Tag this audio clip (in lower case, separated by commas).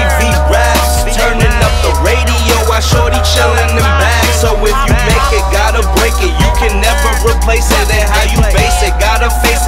music, dance music